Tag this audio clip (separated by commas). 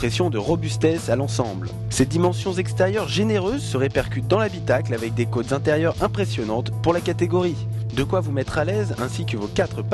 Speech, Music